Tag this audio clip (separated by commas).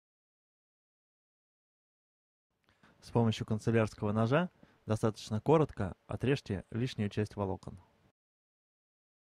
Speech